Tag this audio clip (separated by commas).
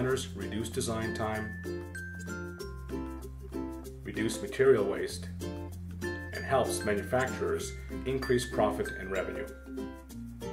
Speech